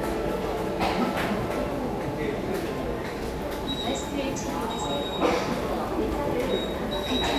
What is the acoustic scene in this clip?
subway station